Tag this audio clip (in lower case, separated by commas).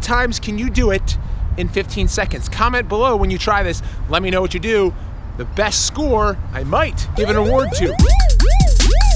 music, speech